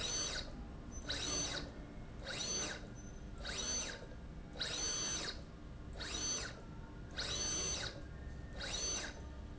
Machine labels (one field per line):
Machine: slide rail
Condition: abnormal